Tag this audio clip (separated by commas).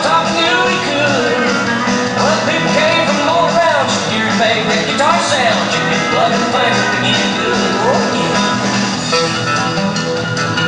Music